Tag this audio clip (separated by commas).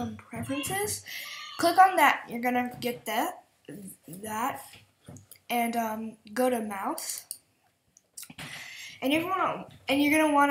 Speech